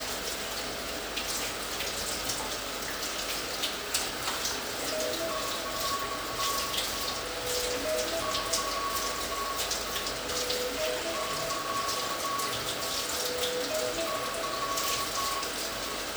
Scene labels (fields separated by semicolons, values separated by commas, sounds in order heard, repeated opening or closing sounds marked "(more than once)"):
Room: bathroom; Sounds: running water, toilet flushing, vacuum cleaner, phone ringing